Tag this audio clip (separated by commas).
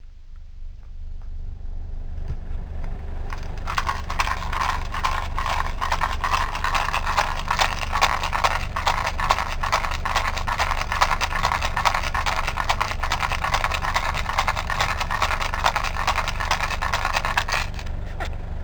Rattle